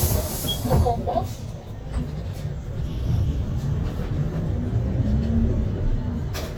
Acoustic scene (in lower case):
bus